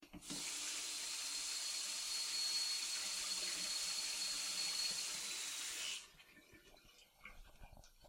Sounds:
home sounds, faucet, Sink (filling or washing)

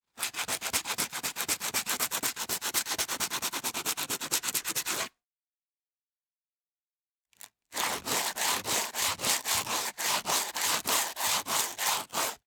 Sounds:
Tools

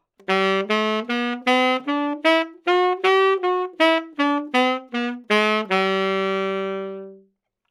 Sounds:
Musical instrument, Wind instrument, Music

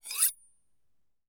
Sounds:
Domestic sounds, Cutlery

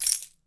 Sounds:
Rattle

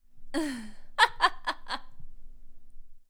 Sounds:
Human voice, Laughter, Chuckle

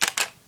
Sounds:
Camera, Mechanisms

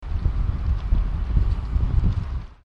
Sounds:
Wind

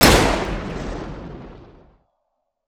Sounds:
gunfire, Explosion

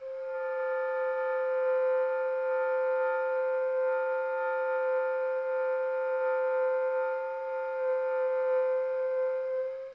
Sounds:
Music, Musical instrument, woodwind instrument

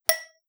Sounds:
Tap, Glass, Chink

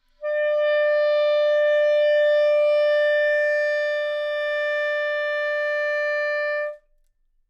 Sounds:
Musical instrument, woodwind instrument, Music

